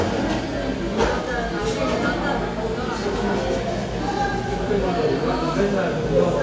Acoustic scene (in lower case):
cafe